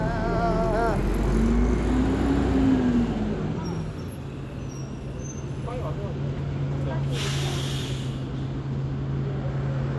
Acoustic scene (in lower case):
street